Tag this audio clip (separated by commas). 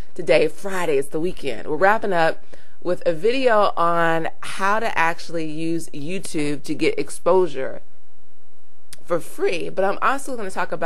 Speech